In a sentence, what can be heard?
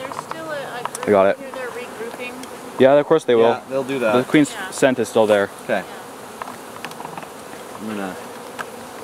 A large group of bugs buzz, a woman speaks, two men respond